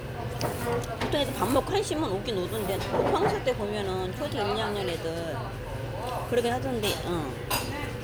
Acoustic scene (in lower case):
restaurant